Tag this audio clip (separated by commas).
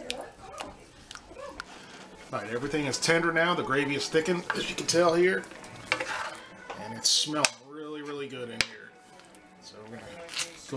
dishes, pots and pans